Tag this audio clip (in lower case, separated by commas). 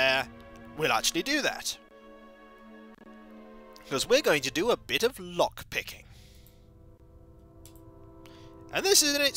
speech, music